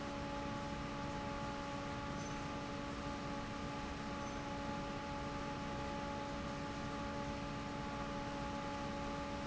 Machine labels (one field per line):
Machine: fan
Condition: normal